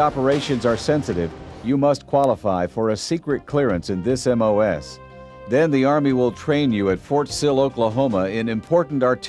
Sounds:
Music, Speech, Artillery fire

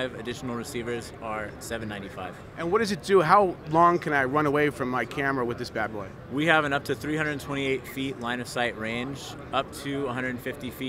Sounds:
Speech

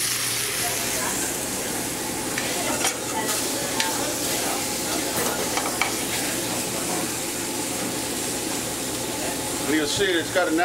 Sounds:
Speech

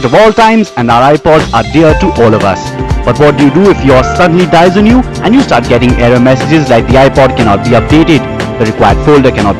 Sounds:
Exciting music, Speech, Music

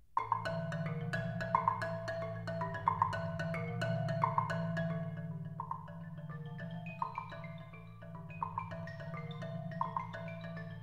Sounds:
Music, Percussion

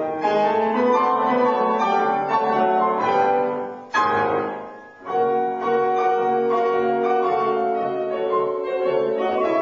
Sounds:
Music, New-age music

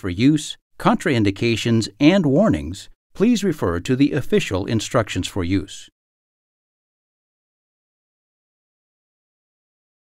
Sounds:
Speech

